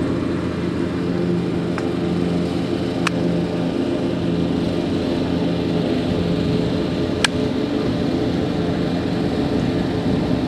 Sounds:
outside, urban or man-made

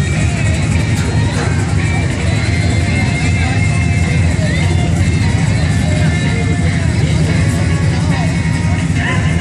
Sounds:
Music, Speech

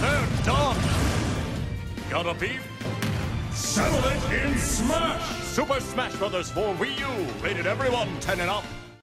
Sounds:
Music, Speech

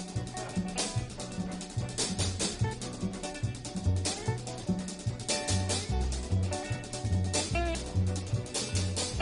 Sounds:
Jazz

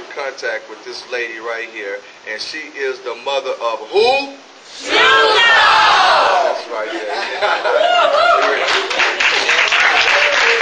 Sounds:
Speech

